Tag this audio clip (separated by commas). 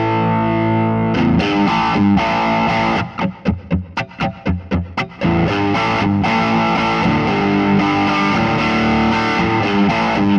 Electric guitar, Music